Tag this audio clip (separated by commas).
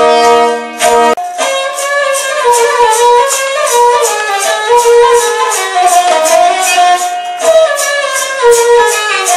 Traditional music, Music